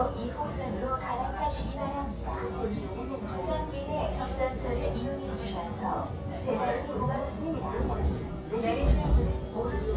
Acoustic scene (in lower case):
subway train